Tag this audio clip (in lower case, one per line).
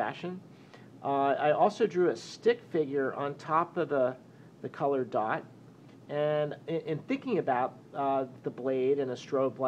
speech